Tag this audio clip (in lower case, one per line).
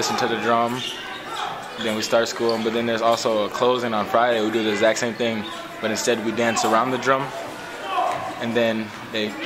inside a large room or hall
speech